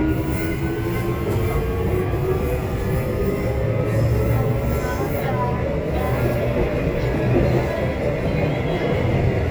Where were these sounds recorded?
on a subway train